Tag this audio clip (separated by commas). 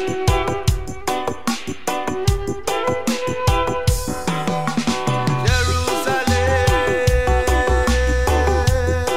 Music, Funk, Reggae